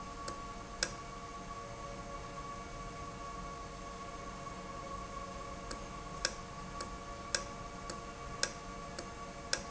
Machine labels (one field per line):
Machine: valve